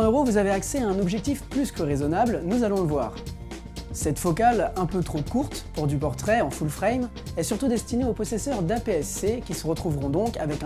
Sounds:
speech, music

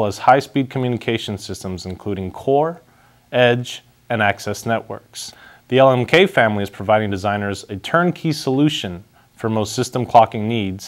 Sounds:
speech

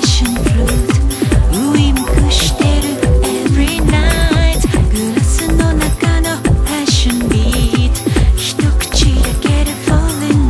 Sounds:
music

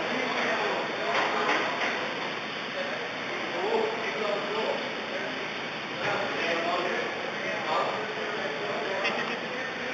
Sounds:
speech

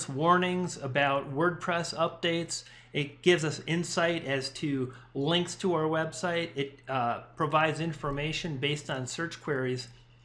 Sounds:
speech

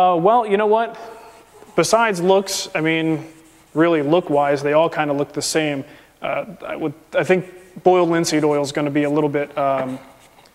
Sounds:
speech, inside a small room

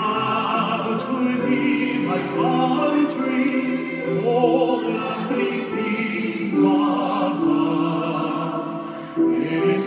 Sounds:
male singing, choir, music

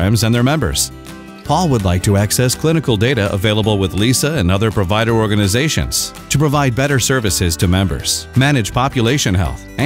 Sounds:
music, speech

